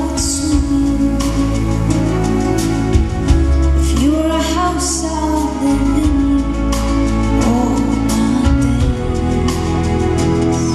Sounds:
music

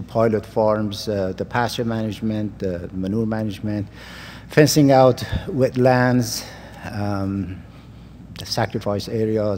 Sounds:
speech

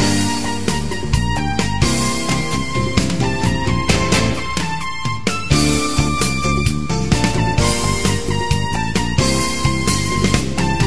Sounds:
video game music, music

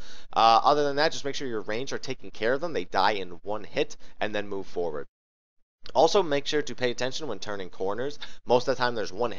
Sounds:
speech synthesizer

